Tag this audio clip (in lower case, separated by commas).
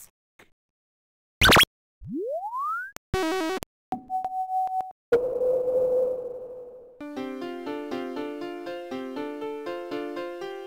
music, sound effect